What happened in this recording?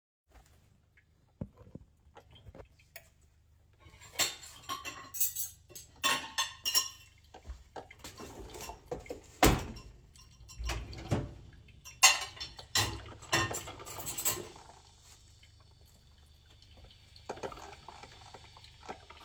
I grabbed dishes opened the dishwasher and loaded the dishes into the dishwasher. The coffee machine was running throughout the entire recording, but mor clearly audible towards the end.